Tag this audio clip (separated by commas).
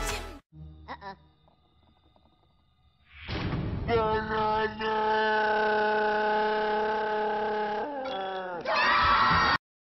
Speech